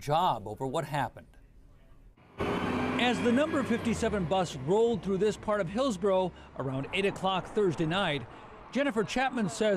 A man is saying something while a car in the background is speeding hastily